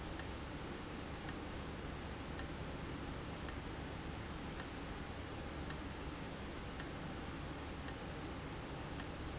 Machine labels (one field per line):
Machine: valve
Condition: abnormal